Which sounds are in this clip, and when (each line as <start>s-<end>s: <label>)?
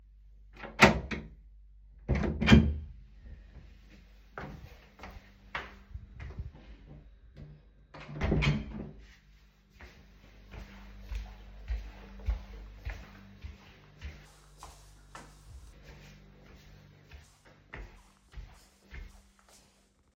0.4s-3.3s: door
4.3s-7.2s: footsteps
7.9s-9.2s: door
9.7s-19.3s: footsteps